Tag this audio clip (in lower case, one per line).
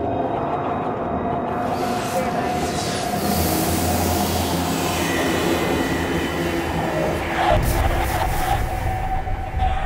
speech
music